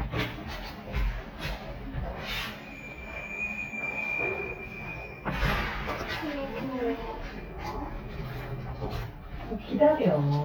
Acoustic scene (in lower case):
elevator